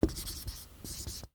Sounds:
writing
domestic sounds

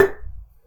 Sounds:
tap

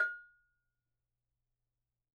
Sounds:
bell

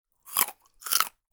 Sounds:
mastication

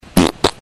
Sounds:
fart

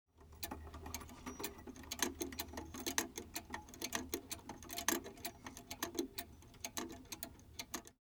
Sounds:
mechanisms
clock

